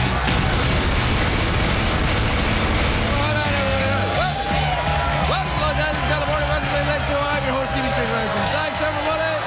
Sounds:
narration, music, speech

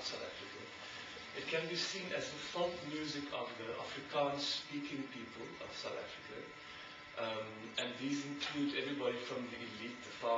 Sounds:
speech

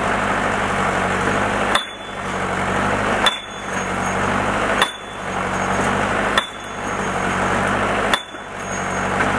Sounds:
outside, rural or natural

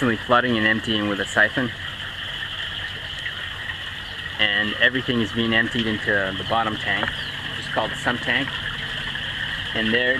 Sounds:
speech

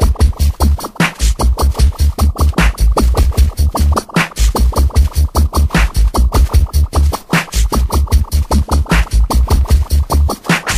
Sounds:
music

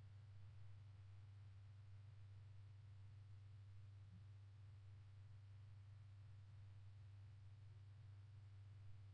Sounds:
silence

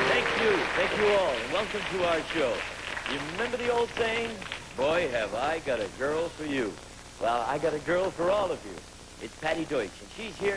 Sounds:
speech

